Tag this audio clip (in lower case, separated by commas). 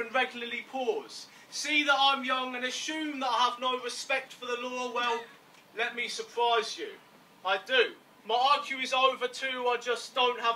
speech